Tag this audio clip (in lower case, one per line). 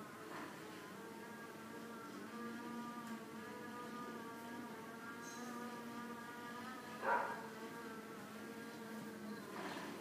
domestic animals
animal